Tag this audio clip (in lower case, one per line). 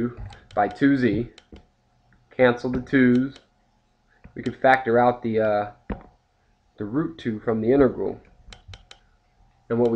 clicking
inside a small room
speech